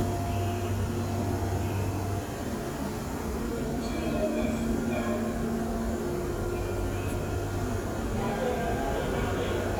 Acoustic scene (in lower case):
subway station